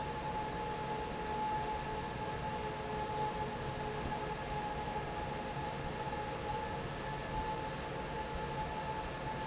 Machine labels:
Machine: fan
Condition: normal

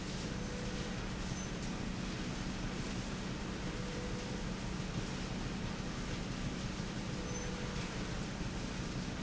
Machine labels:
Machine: slide rail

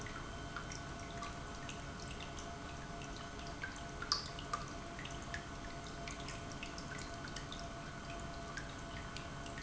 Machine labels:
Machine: pump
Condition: normal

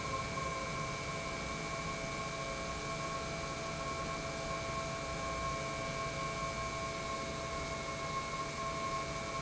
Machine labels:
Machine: pump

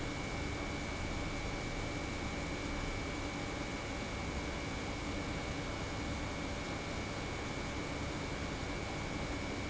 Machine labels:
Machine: pump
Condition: normal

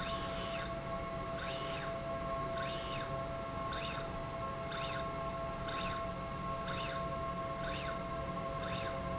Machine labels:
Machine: slide rail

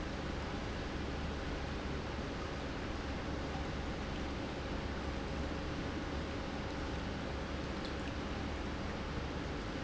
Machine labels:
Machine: pump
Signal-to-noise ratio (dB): -6 dB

